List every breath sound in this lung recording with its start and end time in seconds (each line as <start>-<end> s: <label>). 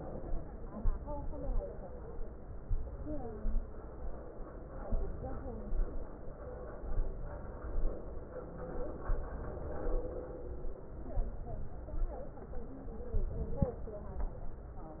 0.78-1.61 s: inhalation
2.64-3.57 s: inhalation
4.90-5.77 s: inhalation
6.93-7.85 s: inhalation
9.08-9.99 s: inhalation
11.17-12.12 s: inhalation
13.13-14.25 s: inhalation